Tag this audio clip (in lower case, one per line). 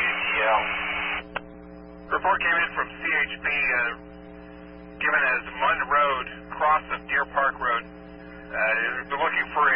speech